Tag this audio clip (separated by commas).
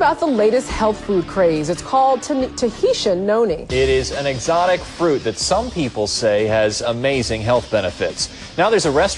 Speech, Music, Television